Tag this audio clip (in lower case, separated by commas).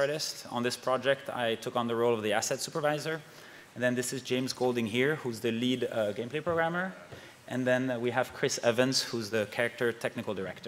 speech